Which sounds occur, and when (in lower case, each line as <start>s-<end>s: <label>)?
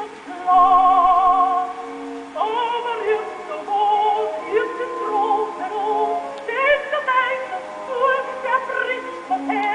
0.0s-9.7s: mechanisms
0.0s-9.7s: music
0.0s-9.7s: yodeling
6.3s-6.4s: tick
9.6s-9.7s: tick